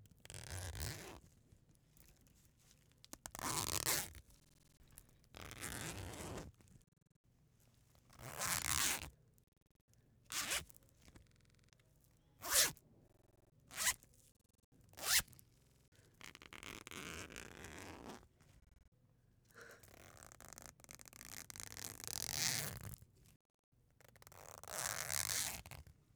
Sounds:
Domestic sounds, Zipper (clothing)

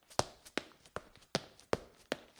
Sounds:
Run

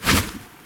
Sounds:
swish

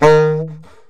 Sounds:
Wind instrument, Musical instrument, Music

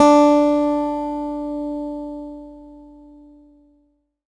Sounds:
Music, Musical instrument, Acoustic guitar, Plucked string instrument, Guitar

